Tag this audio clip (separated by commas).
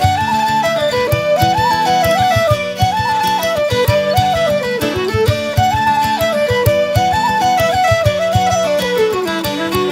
Music, Musical instrument, fiddle